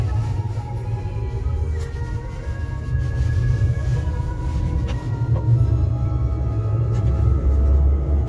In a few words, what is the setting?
car